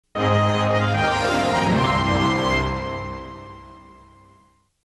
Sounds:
television, music

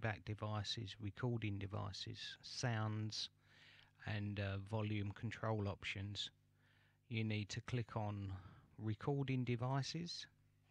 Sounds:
speech

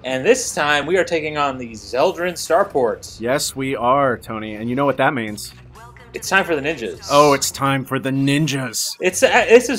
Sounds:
speech

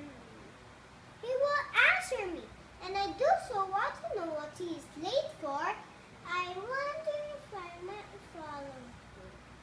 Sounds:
speech, monologue

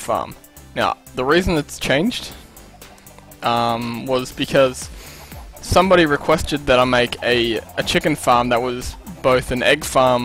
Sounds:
rooster, cluck, fowl

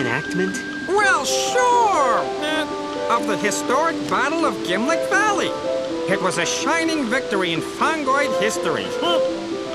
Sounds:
music, speech

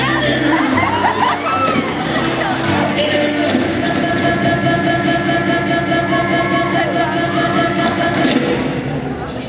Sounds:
music, speech

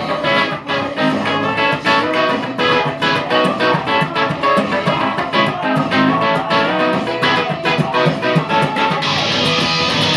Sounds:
music

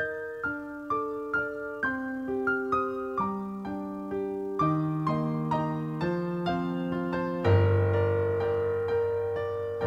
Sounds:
electric piano, keyboard (musical), piano

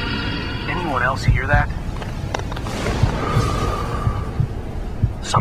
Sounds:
music, speech

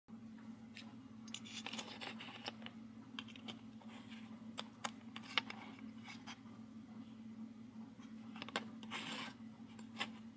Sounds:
inside a small room

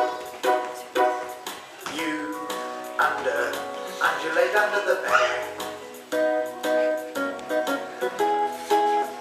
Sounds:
music, ukulele, singing

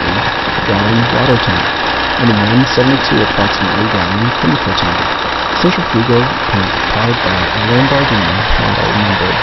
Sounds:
speech, vehicle, truck

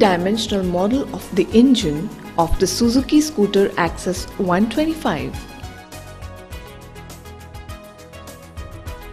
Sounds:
speech, music

